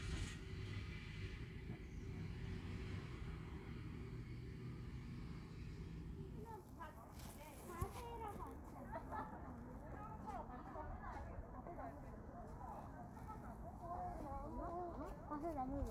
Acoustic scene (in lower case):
residential area